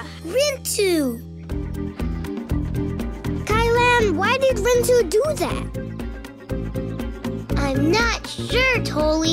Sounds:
music, speech

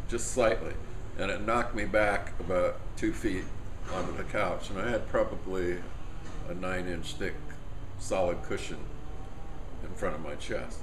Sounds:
speech

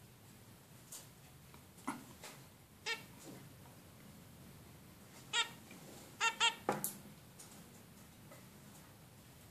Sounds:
bird, domestic animals

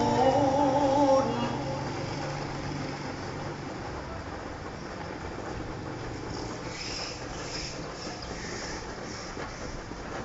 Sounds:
outside, urban or man-made

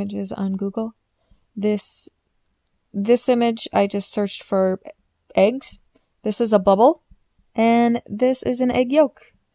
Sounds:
speech

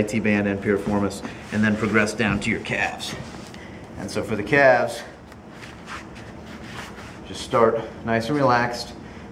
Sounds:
speech

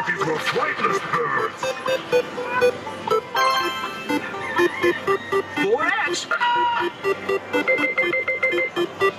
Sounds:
speech, music

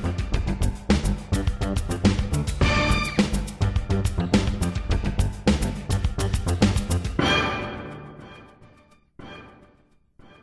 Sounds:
music

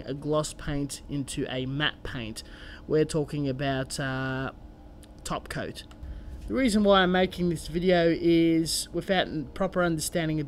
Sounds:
speech

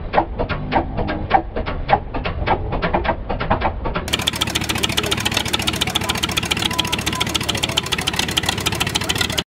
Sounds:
speech, engine, heavy engine (low frequency)

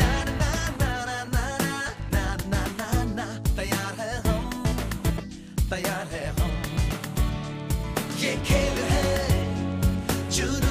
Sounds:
pop music, music

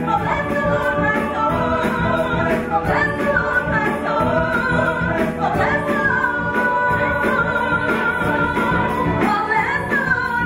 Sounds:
inside a large room or hall, singing, music

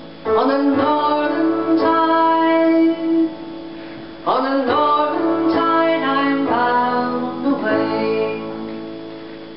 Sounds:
music

